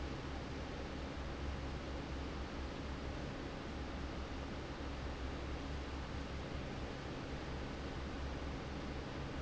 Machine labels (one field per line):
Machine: fan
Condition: normal